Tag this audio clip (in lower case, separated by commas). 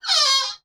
door, domestic sounds, squeak